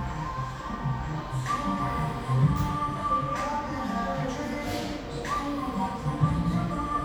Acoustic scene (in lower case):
cafe